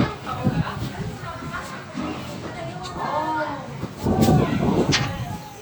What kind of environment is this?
park